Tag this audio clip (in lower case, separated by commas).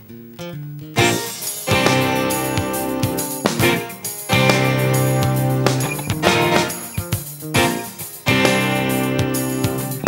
music